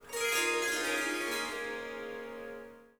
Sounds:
Musical instrument, Harp, Music

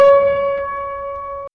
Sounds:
Piano, Music, Musical instrument, Keyboard (musical)

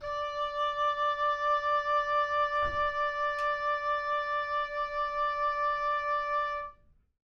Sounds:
Musical instrument, Music, woodwind instrument

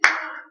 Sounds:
Hands, Clapping

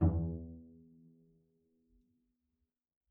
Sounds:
Musical instrument, Bowed string instrument, Music

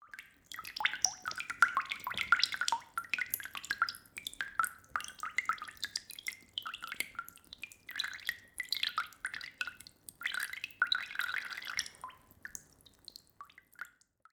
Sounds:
Raindrop, Water, Rain

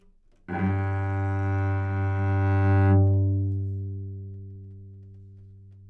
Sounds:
Bowed string instrument, Music, Musical instrument

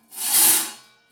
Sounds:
Tools

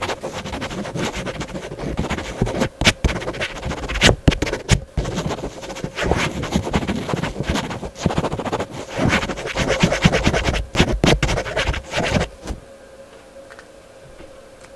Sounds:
Domestic sounds, Writing

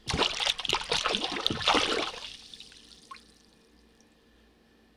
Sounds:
Splash, Liquid

